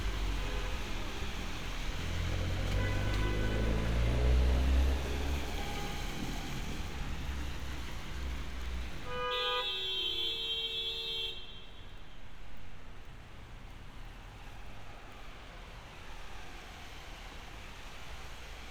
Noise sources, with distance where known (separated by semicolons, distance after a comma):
medium-sounding engine; car horn, near